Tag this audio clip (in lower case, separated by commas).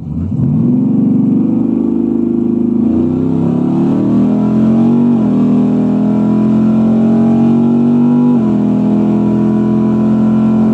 vehicle, car